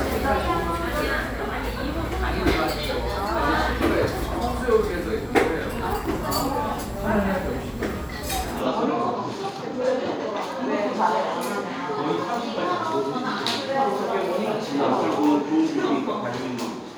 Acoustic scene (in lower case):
cafe